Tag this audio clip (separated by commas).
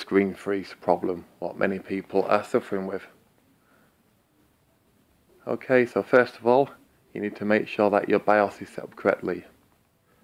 Speech